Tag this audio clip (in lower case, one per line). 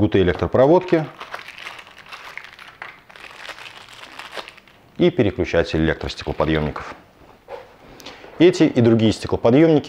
speech
crumpling